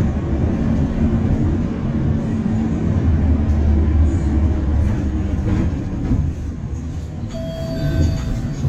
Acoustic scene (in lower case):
bus